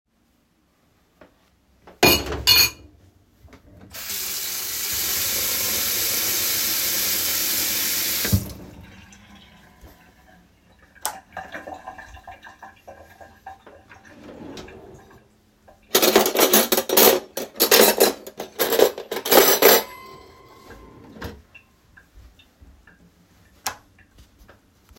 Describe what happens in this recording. I placed my dish into the sink. I let some water run into the dish and then put some unused cutlery back into the drawer.